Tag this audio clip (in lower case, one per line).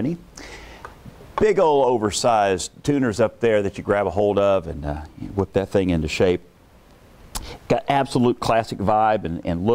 speech